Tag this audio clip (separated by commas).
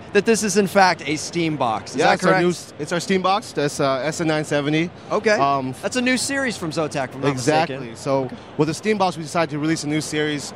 Speech